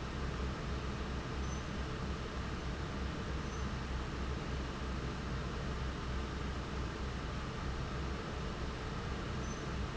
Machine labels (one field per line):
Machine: fan